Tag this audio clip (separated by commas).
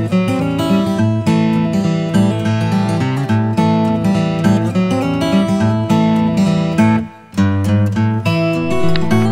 Music, Speech